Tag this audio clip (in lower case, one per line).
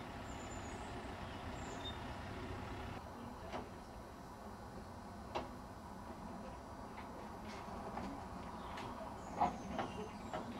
speech